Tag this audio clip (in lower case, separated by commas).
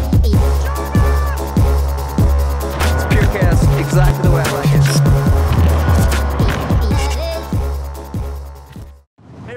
speech, music